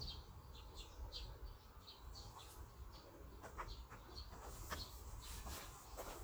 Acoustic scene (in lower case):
park